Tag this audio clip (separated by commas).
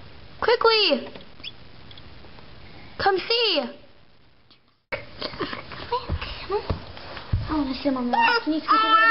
Chicken, Bird